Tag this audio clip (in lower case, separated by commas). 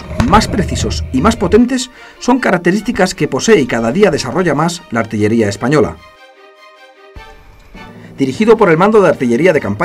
speech, music